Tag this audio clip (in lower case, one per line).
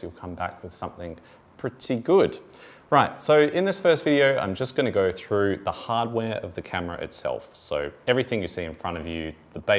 speech